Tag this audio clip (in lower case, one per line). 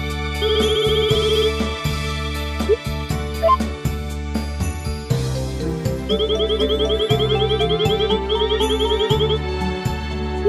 music